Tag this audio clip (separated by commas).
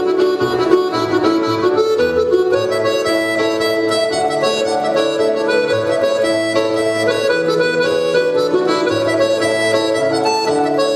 Music, fiddle, Musical instrument